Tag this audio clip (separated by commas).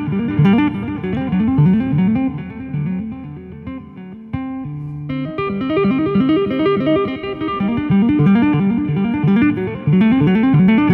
tapping guitar